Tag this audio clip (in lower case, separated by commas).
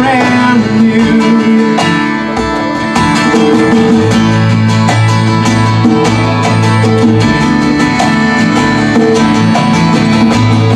music